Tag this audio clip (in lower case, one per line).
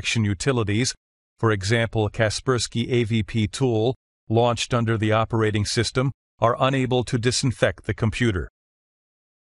speech